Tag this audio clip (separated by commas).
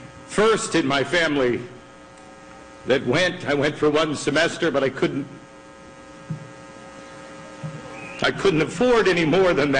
Speech, monologue